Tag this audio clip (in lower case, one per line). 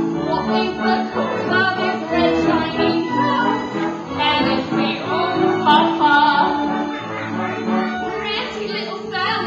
singing
inside a large room or hall
music